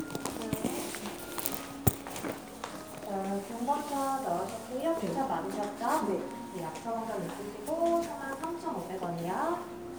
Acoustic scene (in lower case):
crowded indoor space